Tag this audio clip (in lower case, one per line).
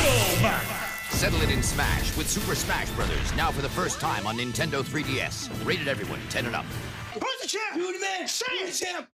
music
speech
crash